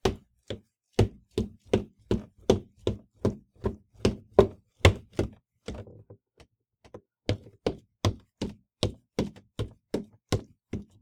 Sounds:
Run

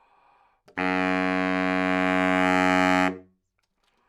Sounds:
Wind instrument, Music, Musical instrument

